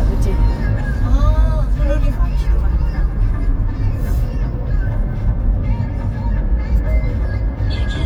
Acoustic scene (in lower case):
car